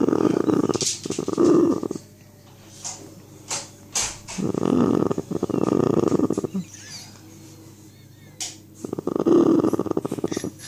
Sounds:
Snoring

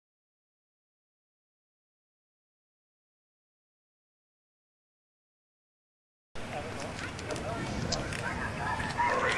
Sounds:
Speech, Radio

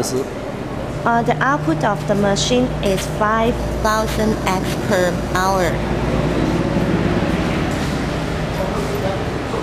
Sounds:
Speech

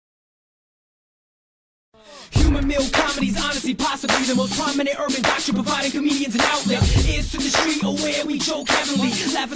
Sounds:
Singing, Music

